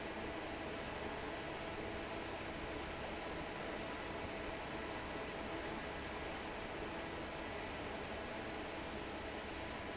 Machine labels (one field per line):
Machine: fan